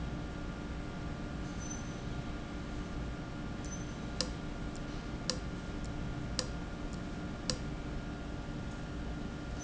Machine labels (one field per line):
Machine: valve